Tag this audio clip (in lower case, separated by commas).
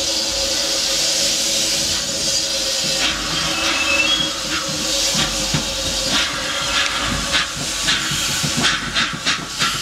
hiss, steam